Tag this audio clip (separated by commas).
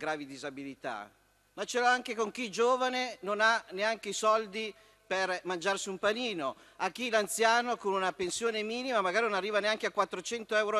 Speech